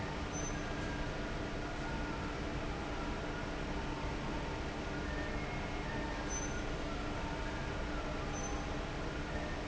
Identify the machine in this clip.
fan